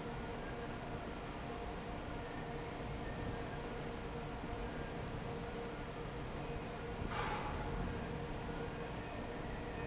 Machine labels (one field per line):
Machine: fan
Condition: normal